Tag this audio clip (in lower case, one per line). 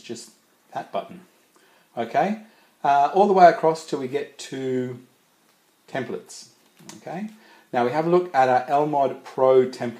speech